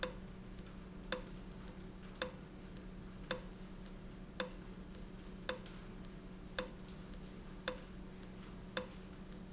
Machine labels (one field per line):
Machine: valve